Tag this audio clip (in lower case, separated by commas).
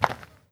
footsteps